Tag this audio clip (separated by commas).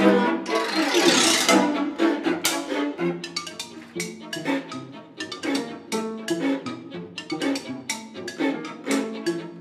Musical instrument, xylophone, Bowed string instrument, Orchestra, fiddle, Music, Cello, Classical music